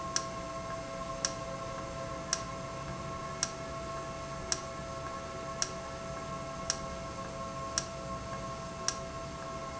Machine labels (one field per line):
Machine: valve